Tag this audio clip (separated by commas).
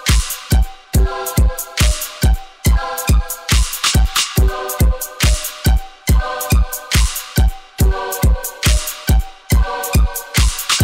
Music